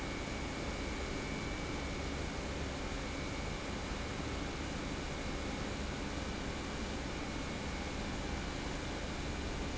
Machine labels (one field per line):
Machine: pump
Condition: normal